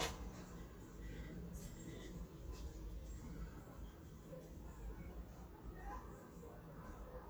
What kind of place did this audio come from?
residential area